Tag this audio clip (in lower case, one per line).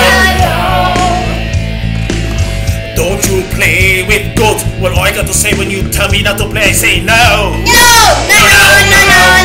music